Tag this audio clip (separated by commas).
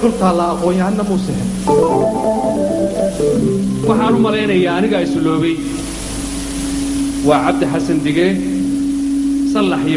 Organ